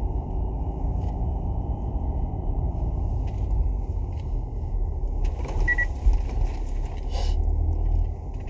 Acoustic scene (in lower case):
car